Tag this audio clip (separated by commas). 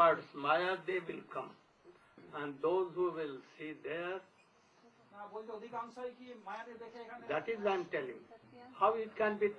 Speech